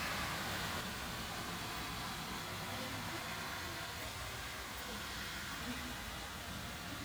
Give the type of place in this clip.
park